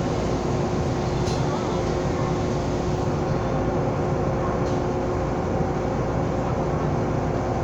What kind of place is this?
subway train